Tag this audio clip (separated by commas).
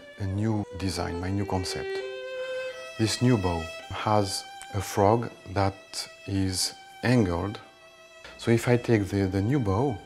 Speech, Music